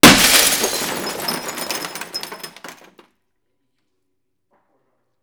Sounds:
Glass, Shatter

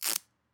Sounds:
home sounds

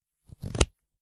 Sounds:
Domestic sounds, Scissors

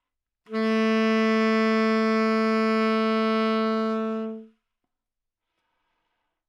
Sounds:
Wind instrument, Musical instrument, Music

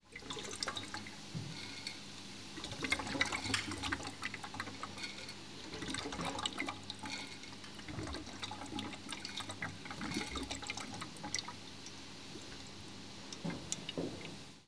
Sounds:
Boiling, Liquid

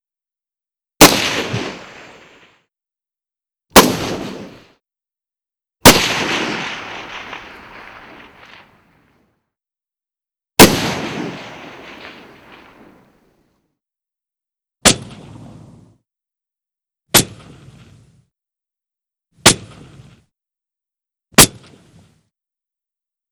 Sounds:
Explosion, gunfire

